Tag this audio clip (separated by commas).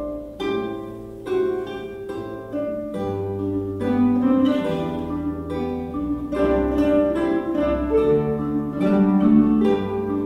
Plucked string instrument, Music, Musical instrument, Acoustic guitar, Orchestra